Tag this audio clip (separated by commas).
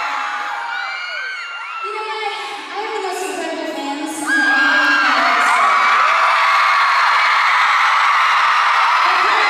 Female speech, Speech